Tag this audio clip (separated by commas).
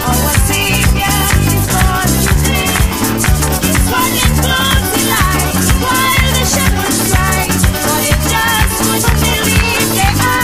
Music, Female singing